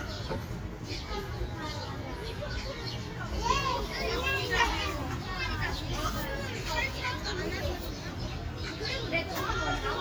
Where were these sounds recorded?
in a park